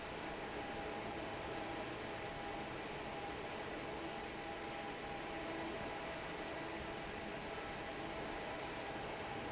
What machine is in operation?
fan